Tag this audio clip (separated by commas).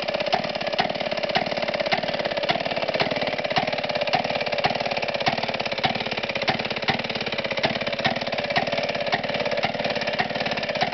Heavy engine (low frequency)